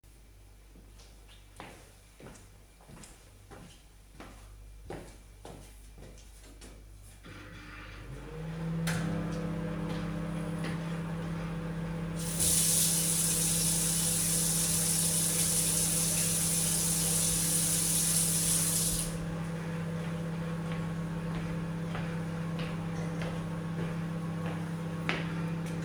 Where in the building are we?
kitchen